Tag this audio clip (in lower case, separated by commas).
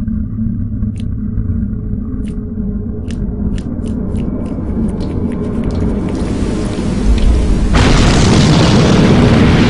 bang, music, boom